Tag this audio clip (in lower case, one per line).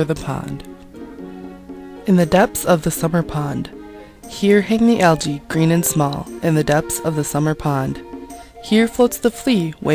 speech
music